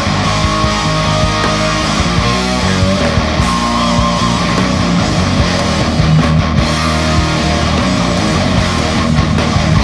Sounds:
Heavy metal, Music, Musical instrument

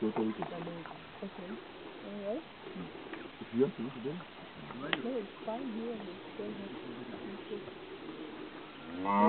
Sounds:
Speech

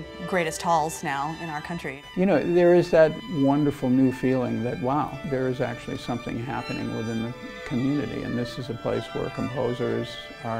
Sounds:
Speech, Music

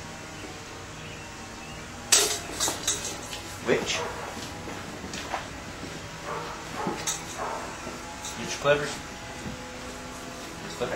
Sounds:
Animal, Speech

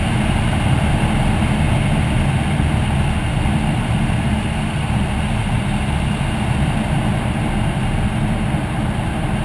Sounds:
Aircraft, Engine, Vehicle, Heavy engine (low frequency), Medium engine (mid frequency)

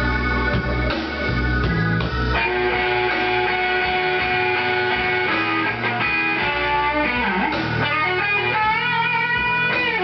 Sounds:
Music

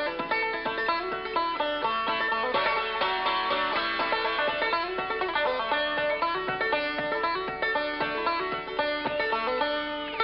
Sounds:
playing banjo

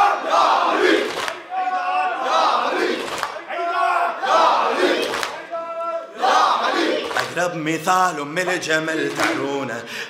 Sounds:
inside a large room or hall, Singing

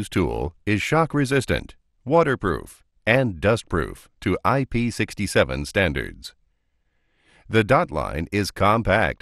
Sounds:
Speech

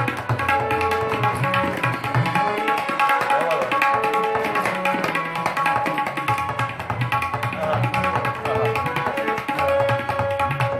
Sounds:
playing tabla

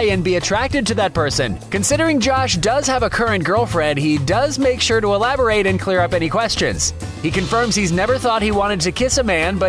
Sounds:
Speech, Music

